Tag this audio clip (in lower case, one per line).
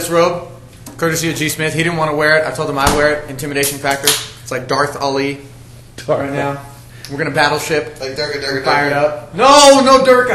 speech